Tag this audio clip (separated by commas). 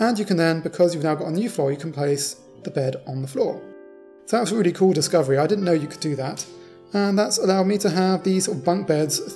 Speech, Music